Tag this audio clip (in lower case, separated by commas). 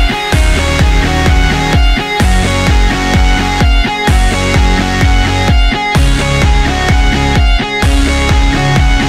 funk, music, dance music